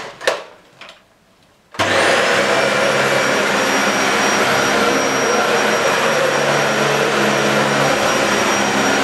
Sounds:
vacuum cleaner

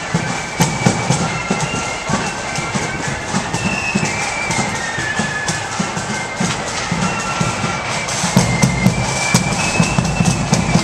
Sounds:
music
footsteps

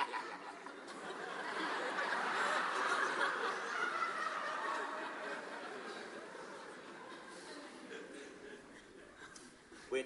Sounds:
narration
speech

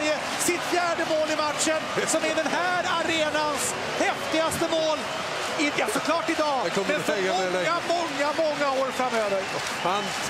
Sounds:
speech

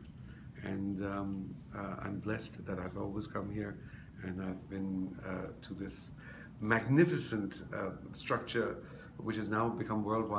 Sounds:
speech

